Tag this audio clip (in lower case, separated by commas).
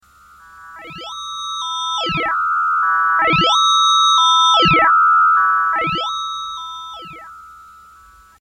musical instrument, keyboard (musical), music